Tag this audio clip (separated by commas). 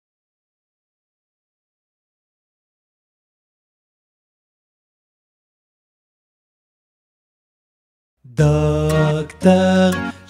Music, Music for children